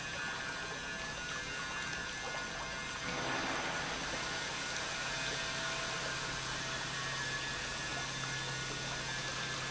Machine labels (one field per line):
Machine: pump